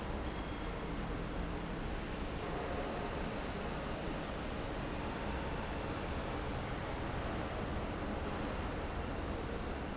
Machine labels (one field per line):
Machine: fan